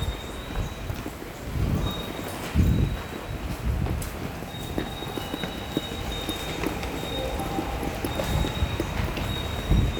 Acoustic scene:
subway station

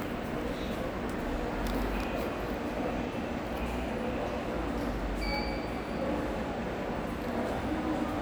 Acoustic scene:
subway station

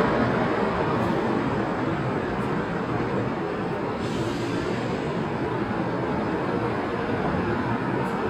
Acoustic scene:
street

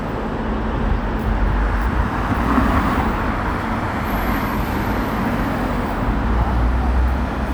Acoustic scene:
street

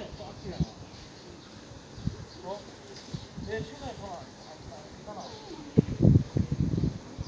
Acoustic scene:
park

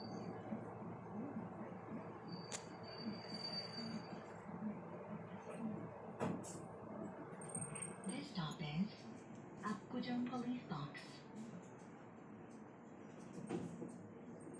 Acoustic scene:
bus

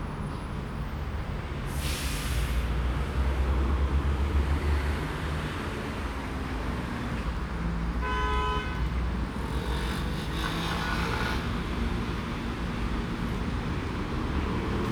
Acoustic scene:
street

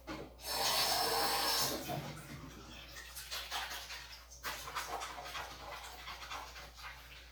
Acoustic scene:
restroom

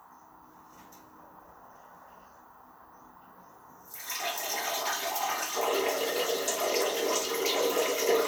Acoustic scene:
restroom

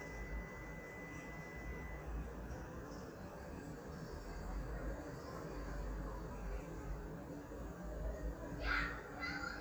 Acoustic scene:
residential area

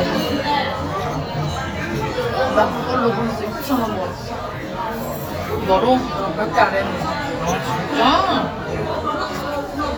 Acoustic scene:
restaurant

